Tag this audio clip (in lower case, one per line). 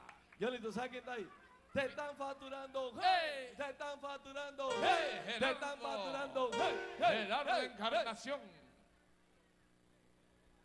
music
speech